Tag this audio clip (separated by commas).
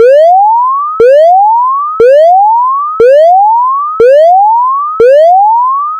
Alarm